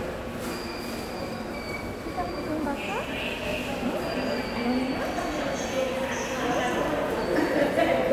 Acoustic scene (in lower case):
subway station